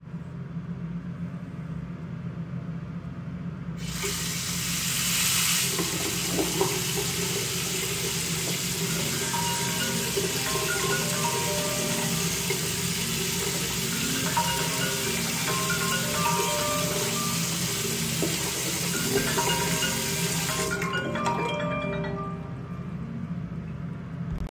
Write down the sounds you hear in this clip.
running water, phone ringing